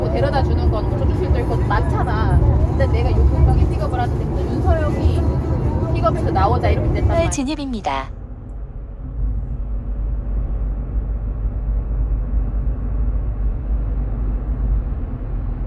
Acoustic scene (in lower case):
car